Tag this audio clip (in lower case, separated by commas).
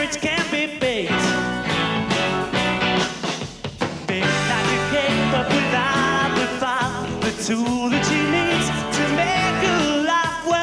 singing, music